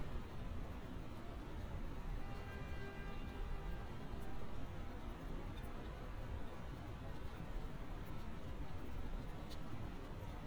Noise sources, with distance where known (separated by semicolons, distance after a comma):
car horn, far